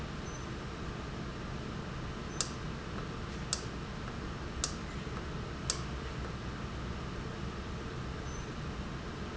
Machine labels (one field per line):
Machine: valve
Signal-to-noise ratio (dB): -6 dB